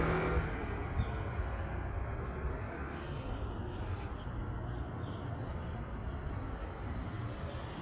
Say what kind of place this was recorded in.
street